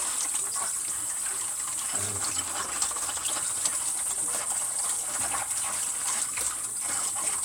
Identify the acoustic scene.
kitchen